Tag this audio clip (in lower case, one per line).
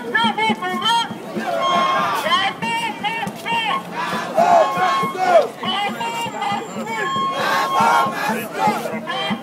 speech
music